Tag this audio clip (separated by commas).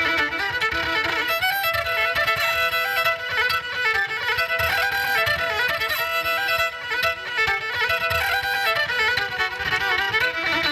Musical instrument, Violin, Music